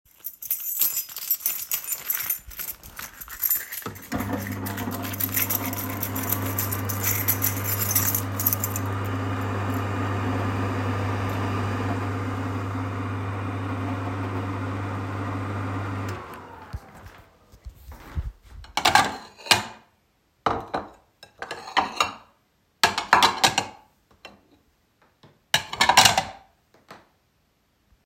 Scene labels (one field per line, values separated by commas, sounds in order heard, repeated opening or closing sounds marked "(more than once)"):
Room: kitchen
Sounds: keys, microwave, cutlery and dishes